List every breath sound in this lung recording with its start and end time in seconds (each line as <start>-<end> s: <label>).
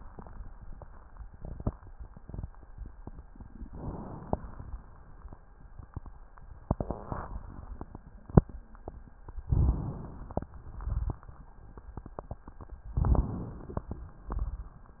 3.66-4.71 s: inhalation
9.47-10.53 s: inhalation
10.51-11.53 s: exhalation
12.97-14.02 s: inhalation
12.97-14.02 s: crackles